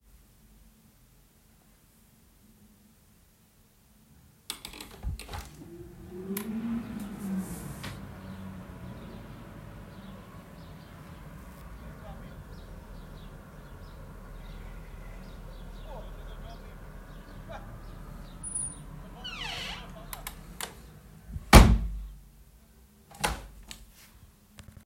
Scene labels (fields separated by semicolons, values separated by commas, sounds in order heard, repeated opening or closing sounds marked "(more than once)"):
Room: bedroom; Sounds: door (more than once), window (more than once)